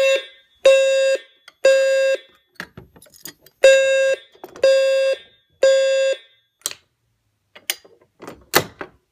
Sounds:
buzzer

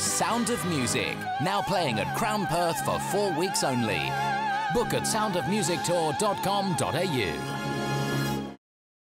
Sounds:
speech
music

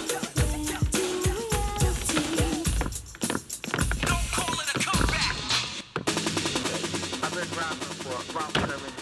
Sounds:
music

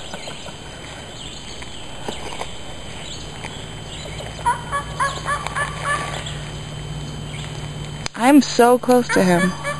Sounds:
speech
bird vocalization
bird

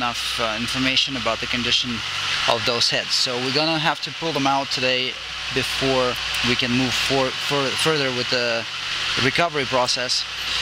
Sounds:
speech

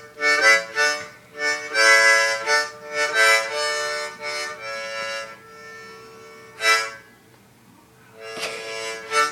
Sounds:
playing harmonica

